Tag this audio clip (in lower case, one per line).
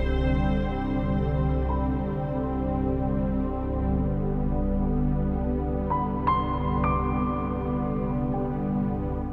music
new-age music